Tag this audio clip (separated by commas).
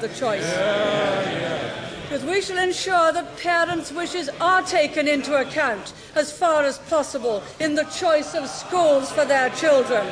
Narration, Speech, woman speaking